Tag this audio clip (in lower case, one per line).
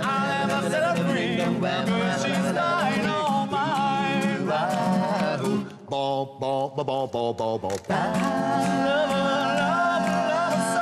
music